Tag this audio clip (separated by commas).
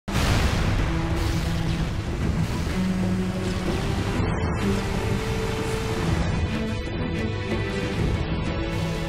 Boom, Music